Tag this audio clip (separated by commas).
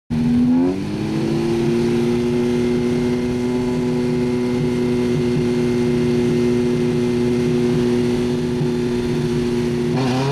Vehicle